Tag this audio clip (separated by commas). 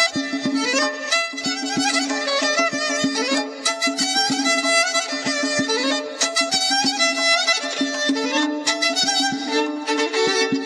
fiddle, Classical music, Musical instrument, Traditional music, Bowed string instrument, Music